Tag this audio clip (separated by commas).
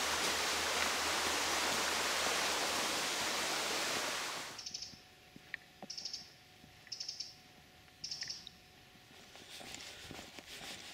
Walk